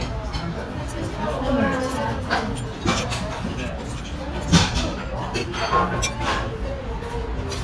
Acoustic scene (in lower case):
restaurant